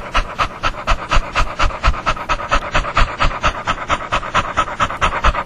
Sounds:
Animal, Domestic animals, Dog

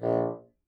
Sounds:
woodwind instrument, Musical instrument, Music

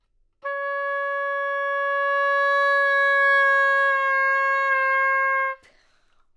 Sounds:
Music, Musical instrument, woodwind instrument

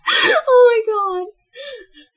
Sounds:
Female speech, Laughter, Human voice, Speech

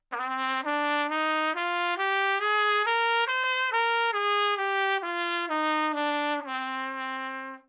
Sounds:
Music, Musical instrument, Brass instrument, Trumpet

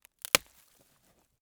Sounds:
Wood

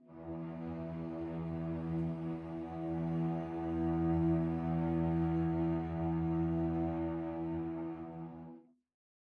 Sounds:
Bowed string instrument, Musical instrument, Music

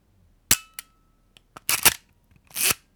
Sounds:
Camera, Mechanisms

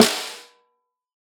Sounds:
Drum, Musical instrument, Music, Snare drum, Percussion

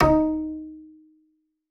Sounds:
Musical instrument, Bowed string instrument, Music

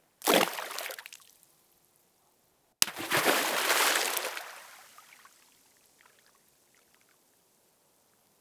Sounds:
Liquid, splatter

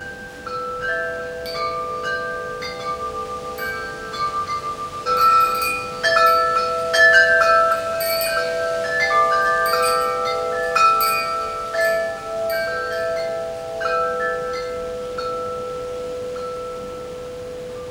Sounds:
Chime, Bell, Wind chime

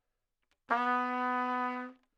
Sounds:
Music, Musical instrument, Trumpet, Brass instrument

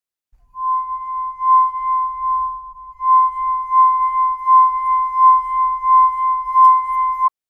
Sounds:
Glass

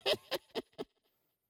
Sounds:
Human voice, Laughter

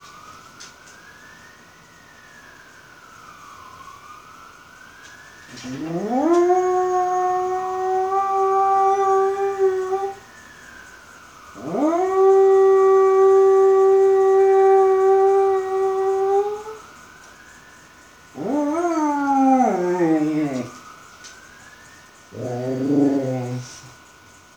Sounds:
Alarm, pets, Siren, Animal, Dog

